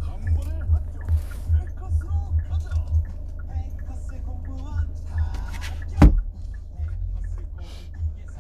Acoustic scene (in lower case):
car